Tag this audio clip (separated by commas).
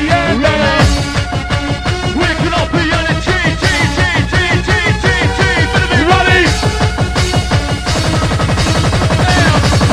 Music